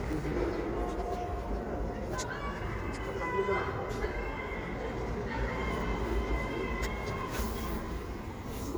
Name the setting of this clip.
residential area